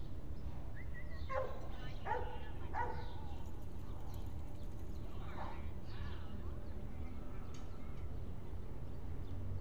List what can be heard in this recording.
person or small group talking, dog barking or whining